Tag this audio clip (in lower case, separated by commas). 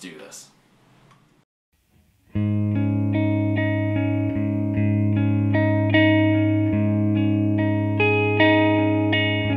speech, music